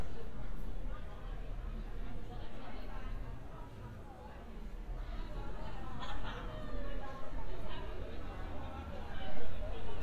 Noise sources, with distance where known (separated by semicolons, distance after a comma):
person or small group talking